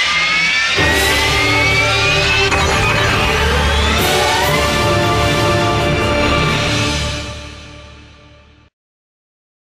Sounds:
music

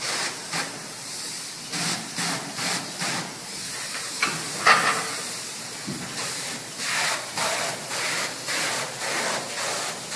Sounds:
spray, wood

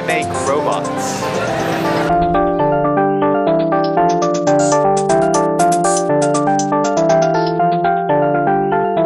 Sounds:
electric piano, synthesizer

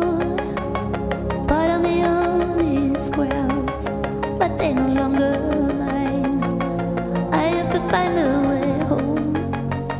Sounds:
music

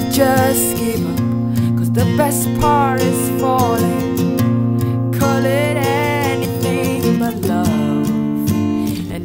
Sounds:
jazz, music, rhythm and blues

